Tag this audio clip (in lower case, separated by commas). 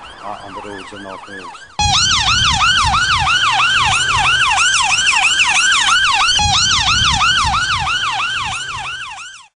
emergency vehicle, ambulance (siren), ambulance siren, siren